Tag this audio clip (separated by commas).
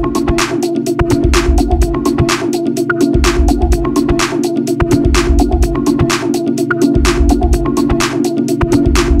Music